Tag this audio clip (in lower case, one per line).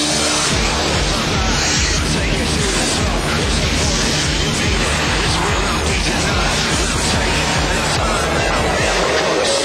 music
outside, rural or natural